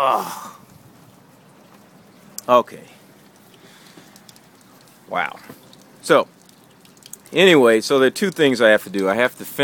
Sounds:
speech

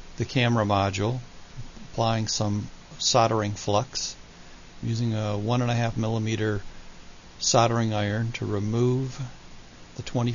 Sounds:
speech

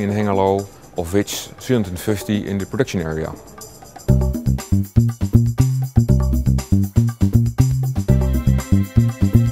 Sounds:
music, speech

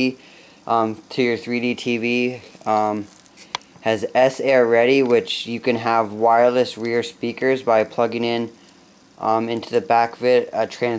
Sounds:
speech

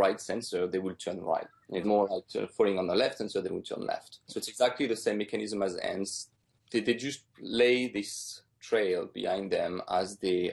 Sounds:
speech

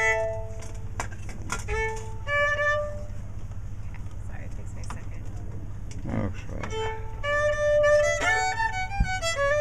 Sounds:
speech, music, musical instrument, bowed string instrument, violin

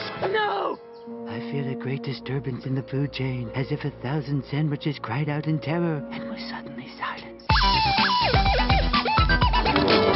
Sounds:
speech, music

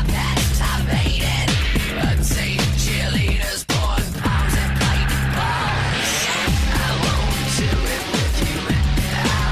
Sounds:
music

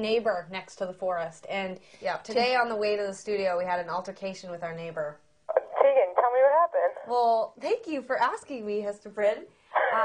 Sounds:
speech, inside a small room

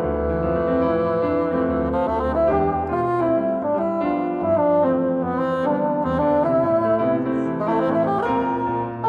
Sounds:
playing bassoon

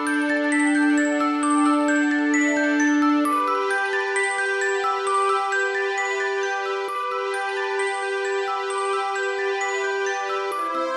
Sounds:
music, theme music

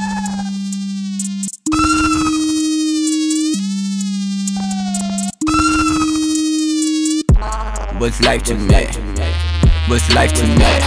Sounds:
music

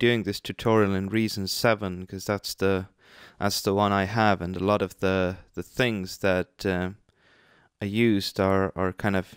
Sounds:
speech

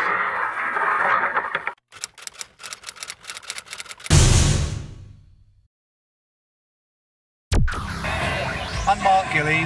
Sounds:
music, speech, outside, rural or natural

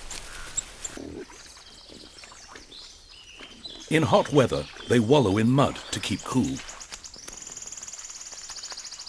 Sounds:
speech, pig, outside, rural or natural

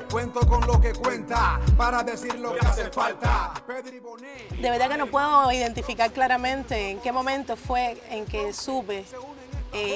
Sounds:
music, speech

